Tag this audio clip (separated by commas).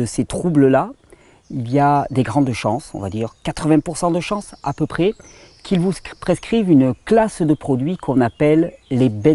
Speech